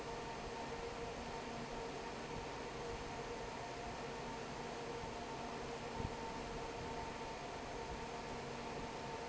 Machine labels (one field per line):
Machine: fan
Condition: normal